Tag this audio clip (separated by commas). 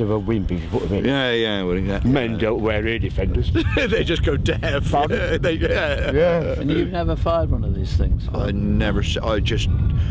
Speech